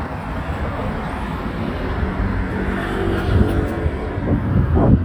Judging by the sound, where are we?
in a residential area